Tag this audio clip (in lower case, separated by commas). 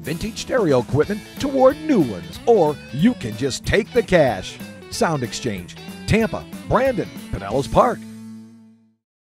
music, speech